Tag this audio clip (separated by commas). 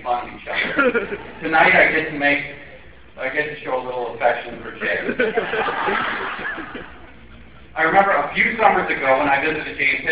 Speech, man speaking